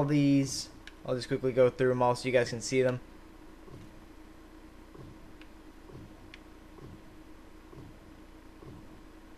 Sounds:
Speech

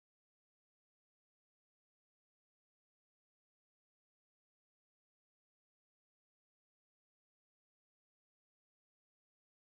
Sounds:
Music

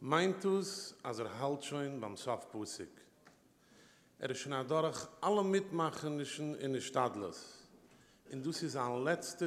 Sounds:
Speech, monologue, man speaking

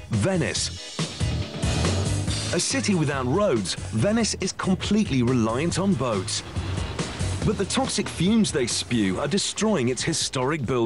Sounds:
Music, Speech

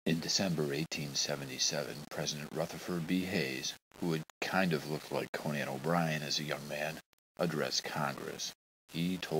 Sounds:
Speech

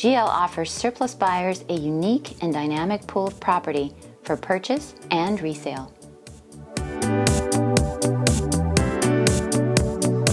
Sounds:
Speech, Music

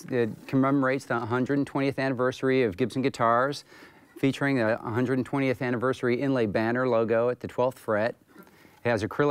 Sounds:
Speech

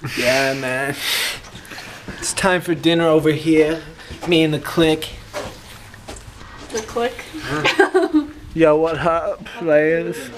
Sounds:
Speech

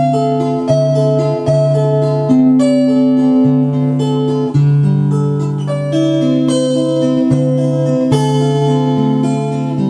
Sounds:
Musical instrument, Guitar, Music, Strum, Plucked string instrument, Acoustic guitar

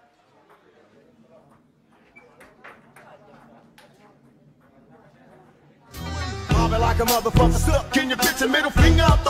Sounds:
Music

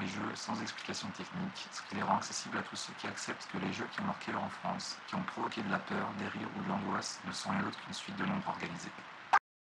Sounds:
Speech

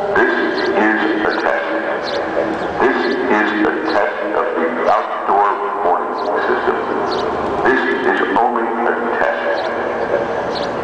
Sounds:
Speech

